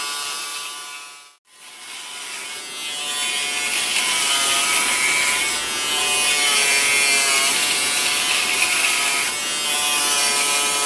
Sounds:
electric razor shaving

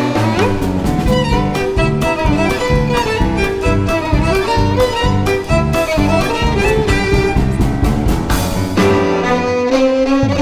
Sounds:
Musical instrument, fiddle, Bowed string instrument, Music

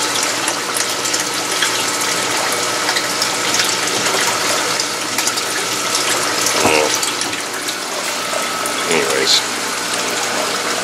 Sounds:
Water, Pump (liquid)

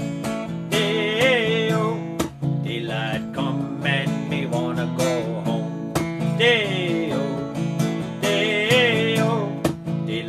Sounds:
Music

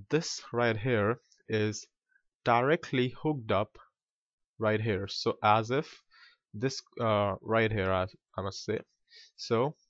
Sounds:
monologue

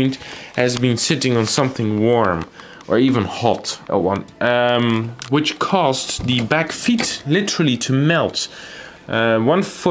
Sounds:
typing on typewriter

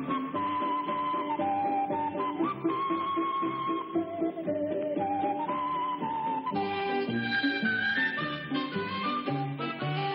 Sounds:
Music

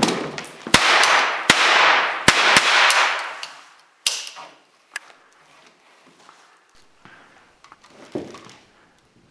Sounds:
cap gun shooting

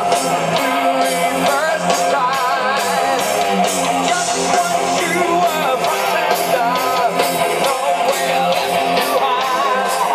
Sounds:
Music

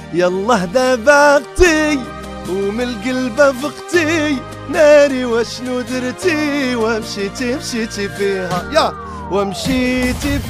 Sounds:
Music, Radio

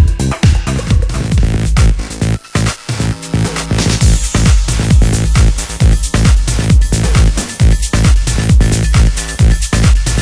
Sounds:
Electronic music, Techno, House music, Music

